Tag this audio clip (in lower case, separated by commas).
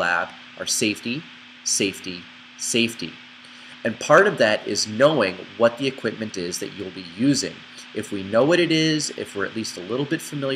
speech